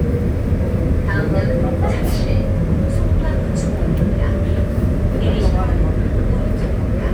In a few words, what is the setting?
subway train